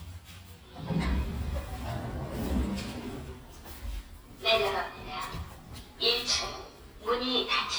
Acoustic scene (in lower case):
elevator